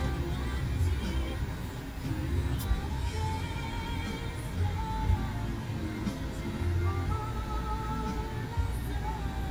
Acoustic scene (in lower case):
car